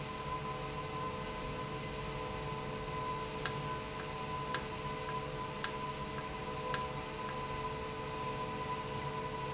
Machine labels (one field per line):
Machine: valve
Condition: normal